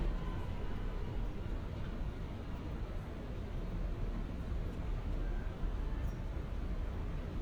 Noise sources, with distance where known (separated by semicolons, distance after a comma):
engine of unclear size